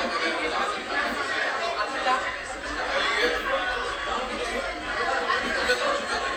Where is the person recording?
in a cafe